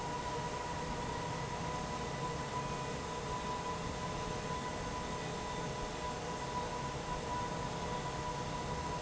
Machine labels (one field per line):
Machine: fan